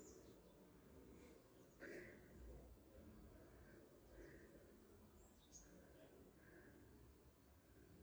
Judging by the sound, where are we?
in a park